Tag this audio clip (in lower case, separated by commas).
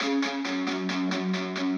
plucked string instrument, music, electric guitar, guitar, musical instrument